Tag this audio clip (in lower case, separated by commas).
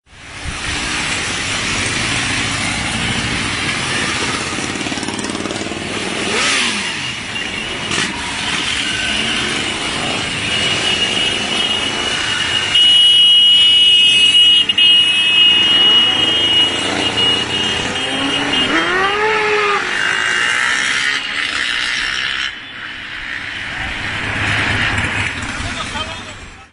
motorcycle, motor vehicle (road), vehicle